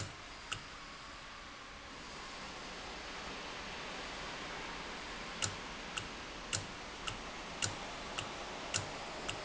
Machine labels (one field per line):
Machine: valve